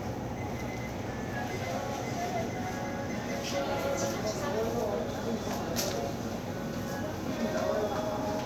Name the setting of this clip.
crowded indoor space